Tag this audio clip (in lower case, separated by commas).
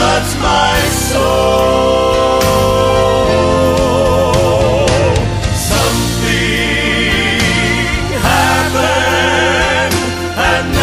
music